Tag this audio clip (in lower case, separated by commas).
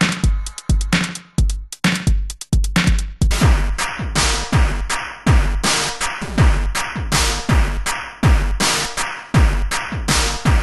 drum machine, musical instrument, music